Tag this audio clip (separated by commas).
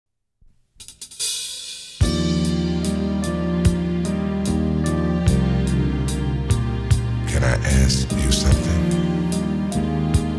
Speech, Hi-hat, Music, Cymbal